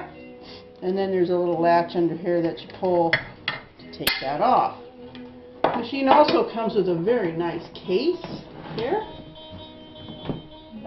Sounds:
Music, Speech

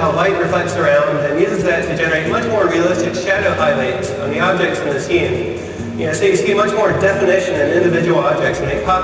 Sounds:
Speech, Music

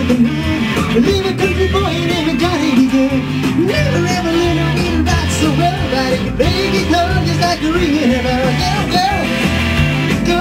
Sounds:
Musical instrument, Guitar, Electric guitar, Strum, Music, Plucked string instrument

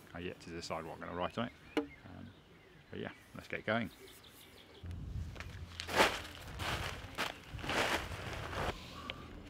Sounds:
Speech

